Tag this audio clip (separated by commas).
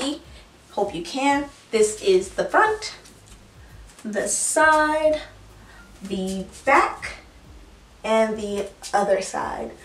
Speech, inside a small room